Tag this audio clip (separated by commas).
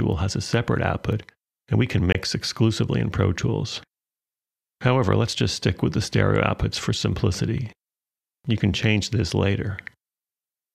Speech